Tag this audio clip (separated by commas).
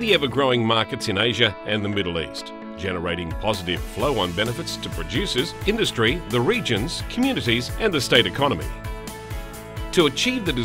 Speech, Music